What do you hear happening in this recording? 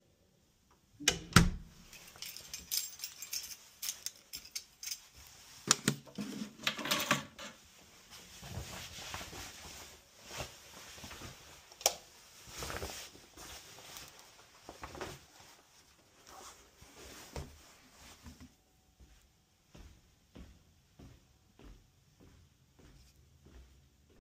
I closed the door to my apartment and put my keys on the shelf. I switched on the light WHILE taking my jacket off and moved to my room